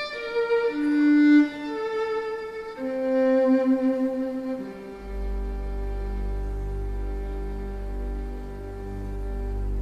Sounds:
fiddle, playing cello, cello, bowed string instrument

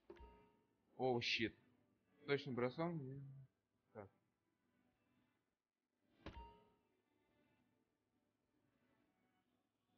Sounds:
playing darts

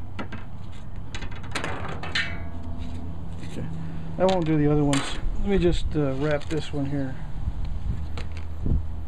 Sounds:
speech

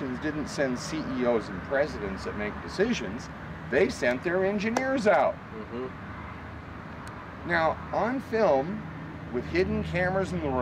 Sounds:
speech, medium engine (mid frequency), vehicle

